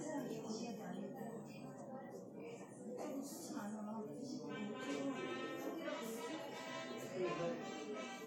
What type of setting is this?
subway station